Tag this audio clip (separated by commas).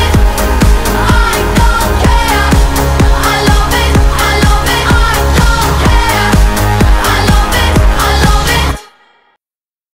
Music, Background music